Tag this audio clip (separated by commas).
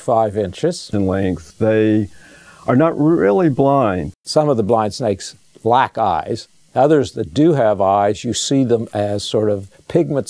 inside a small room, Speech